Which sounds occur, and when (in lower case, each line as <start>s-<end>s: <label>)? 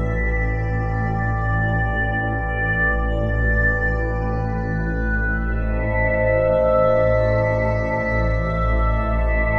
0.0s-9.5s: music